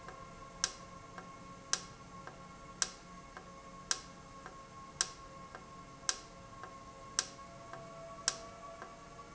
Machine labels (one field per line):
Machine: valve